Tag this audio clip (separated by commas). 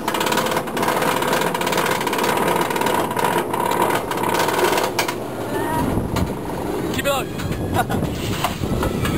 Speech, outside, urban or man-made